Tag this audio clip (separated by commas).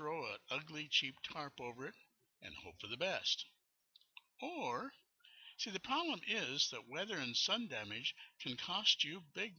Speech